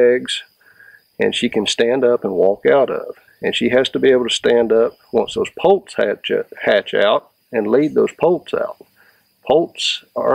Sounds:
speech

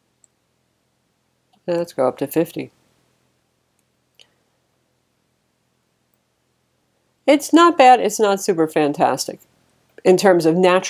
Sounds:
speech, inside a small room

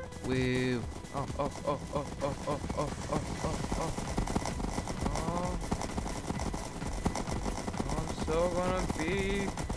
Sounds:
music, speech, clip-clop

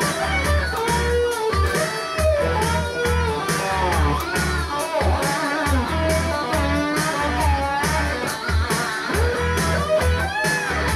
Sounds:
plucked string instrument, guitar, music, musical instrument, electric guitar

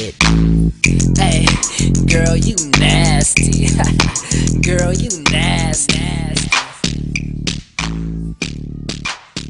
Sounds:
hip hop music, music

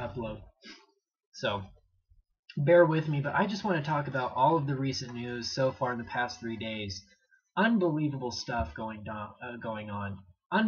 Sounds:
speech

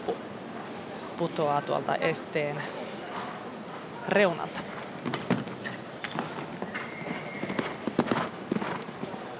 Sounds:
clip-clop, animal, horse, speech

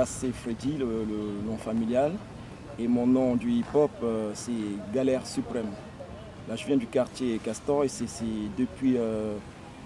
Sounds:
speech

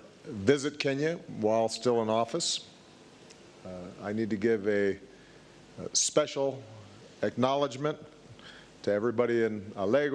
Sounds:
narration, speech, man speaking

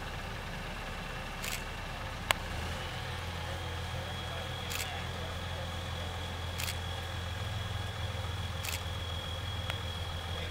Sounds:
speech

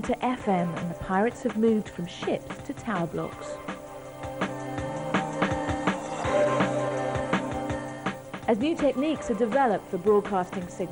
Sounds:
speech, music

